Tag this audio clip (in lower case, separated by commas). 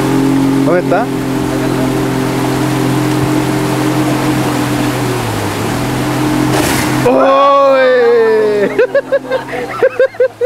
speech, speedboat, vehicle